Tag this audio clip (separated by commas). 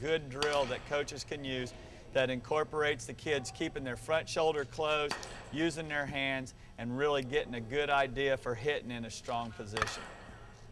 Speech